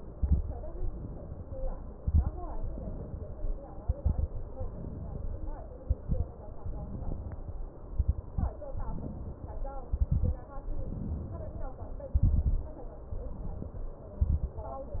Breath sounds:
Inhalation: 0.68-1.65 s, 2.60-3.57 s, 4.48-5.57 s, 6.56-7.64 s, 8.72-9.69 s, 10.62-11.80 s, 13.07-14.04 s
Exhalation: 0.00-0.53 s, 1.92-2.35 s, 3.80-4.31 s, 5.82-6.34 s, 7.89-8.55 s, 9.90-10.43 s, 12.14-12.81 s, 14.20-14.61 s
Crackles: 0.00-0.53 s, 1.92-2.35 s, 3.80-4.31 s, 5.82-6.34 s, 7.89-8.55 s, 9.90-10.43 s, 12.14-12.81 s, 14.20-14.61 s

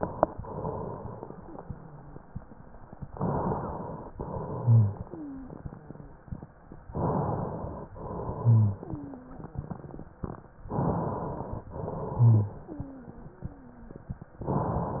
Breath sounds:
Inhalation: 3.13-4.14 s, 6.95-7.95 s, 10.66-11.67 s, 14.46-15.00 s
Exhalation: 0.34-2.97 s, 4.16-6.71 s, 7.99-10.54 s, 11.72-14.28 s
Wheeze: 5.15-5.51 s, 8.82-9.39 s, 12.64-13.97 s
Rhonchi: 4.62-4.98 s, 8.40-8.77 s, 12.20-12.66 s

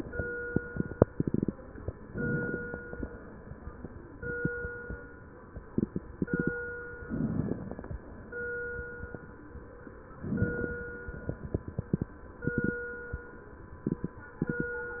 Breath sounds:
Inhalation: 2.05-3.06 s, 7.00-8.01 s, 10.15-11.16 s
Crackles: 2.05-3.06 s, 7.00-8.01 s, 10.15-11.16 s

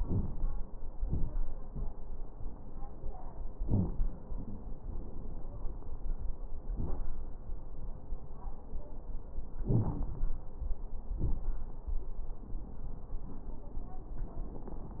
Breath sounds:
Inhalation: 9.64-10.16 s
Exhalation: 11.22-11.54 s
Crackles: 9.64-10.16 s, 11.22-11.54 s

